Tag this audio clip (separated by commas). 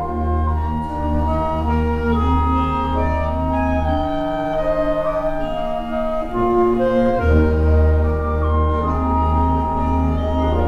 Music, Brass instrument, Classical music, Orchestra